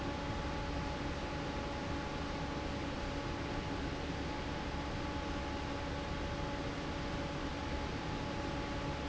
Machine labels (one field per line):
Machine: fan